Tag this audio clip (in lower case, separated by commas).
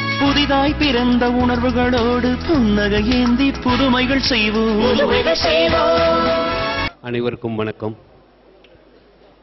monologue, speech, man speaking, music